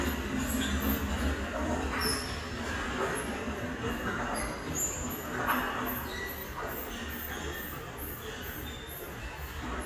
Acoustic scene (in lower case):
restaurant